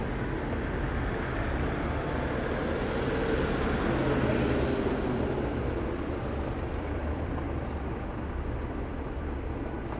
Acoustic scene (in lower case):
street